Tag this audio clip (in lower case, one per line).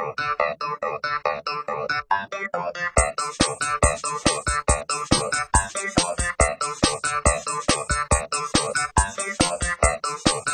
music